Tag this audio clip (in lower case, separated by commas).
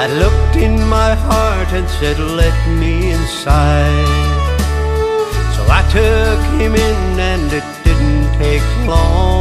country, music